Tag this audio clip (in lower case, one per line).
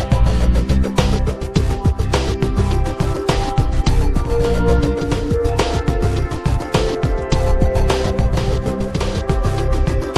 music